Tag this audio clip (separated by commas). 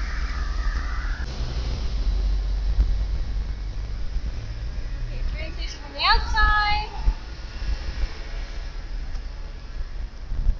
Speech